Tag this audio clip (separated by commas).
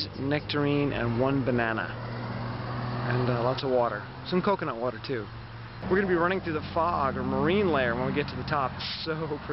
Speech